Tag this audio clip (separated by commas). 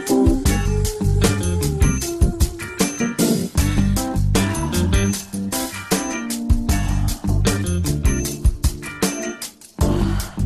Music